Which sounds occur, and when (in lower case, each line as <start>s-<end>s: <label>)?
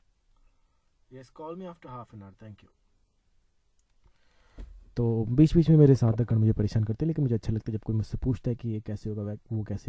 0.0s-9.8s: background noise
0.3s-1.0s: breathing
1.1s-2.8s: man speaking
3.8s-4.2s: clicking
4.1s-4.7s: breathing
4.5s-4.7s: generic impact sounds
5.0s-9.8s: man speaking